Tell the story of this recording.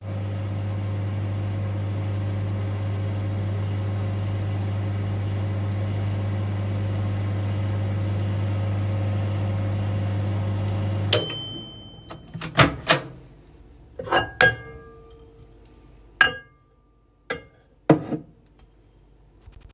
I used the microwave and moved dishes on the counter.